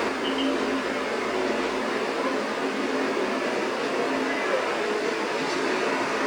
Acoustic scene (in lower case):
street